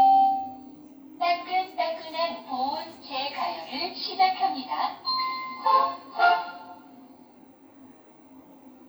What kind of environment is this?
kitchen